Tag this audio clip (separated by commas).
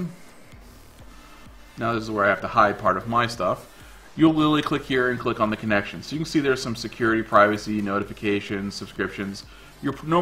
Music, Speech